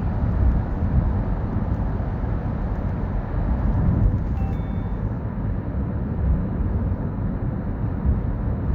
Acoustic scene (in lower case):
car